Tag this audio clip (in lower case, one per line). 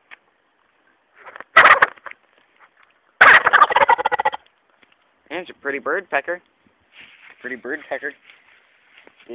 turkey gobbling